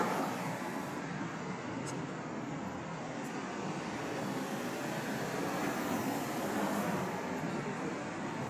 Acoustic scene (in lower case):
street